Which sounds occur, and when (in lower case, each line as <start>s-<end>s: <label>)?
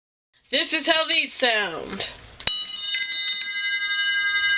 0.3s-4.5s: speech babble
0.5s-2.1s: female speech
2.4s-4.5s: bell